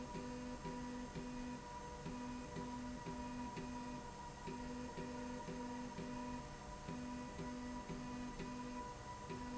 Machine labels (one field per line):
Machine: slide rail